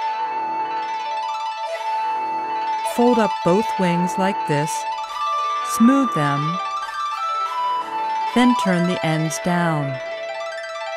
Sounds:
Speech, Music

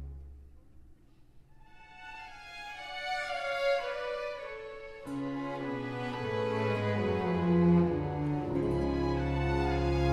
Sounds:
Violin, Musical instrument, Music

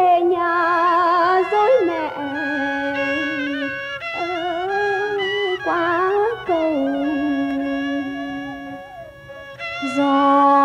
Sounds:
Music

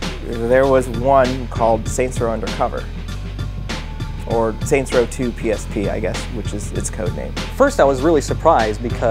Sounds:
Speech, Music

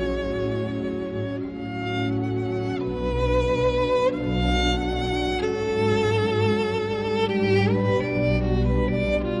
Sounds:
Musical instrument, Violin, Music

